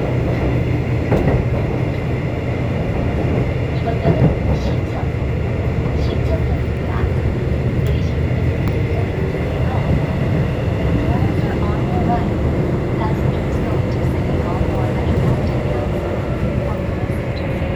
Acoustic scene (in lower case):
subway train